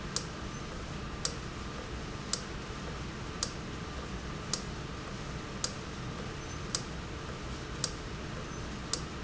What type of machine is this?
valve